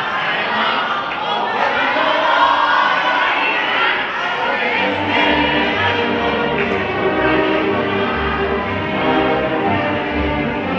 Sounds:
orchestra
inside a large room or hall
music
choir
singing

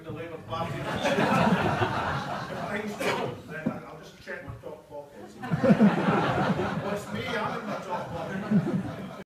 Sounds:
speech

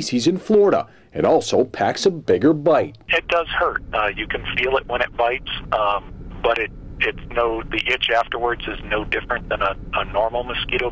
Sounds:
speech

